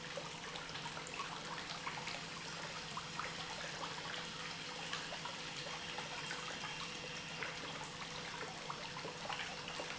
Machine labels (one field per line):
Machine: pump